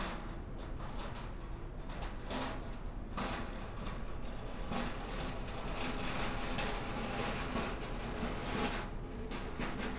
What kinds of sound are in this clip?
non-machinery impact